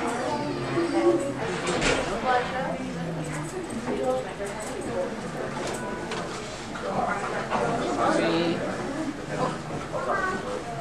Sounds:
man speaking

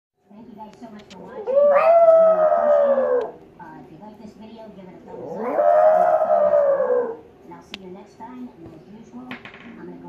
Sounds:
dog howling

